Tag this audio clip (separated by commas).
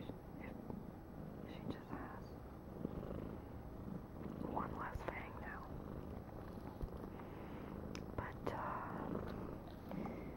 Domestic animals, Purr, Animal, Speech, Cat, Whispering